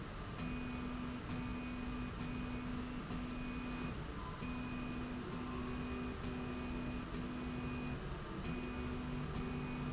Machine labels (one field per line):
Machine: slide rail